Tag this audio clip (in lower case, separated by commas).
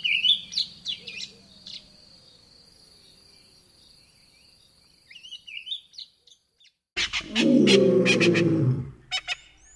cuckoo bird calling